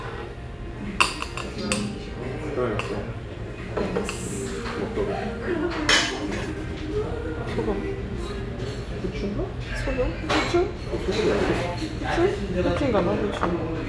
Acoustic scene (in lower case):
restaurant